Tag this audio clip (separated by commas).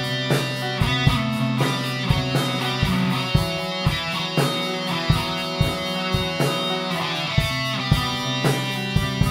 Music